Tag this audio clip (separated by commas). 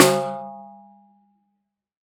Music, Drum, Percussion, Snare drum, Musical instrument